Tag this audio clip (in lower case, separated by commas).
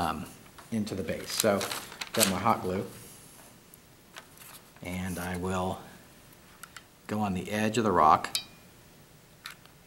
speech